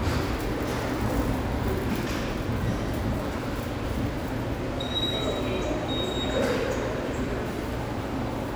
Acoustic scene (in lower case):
subway station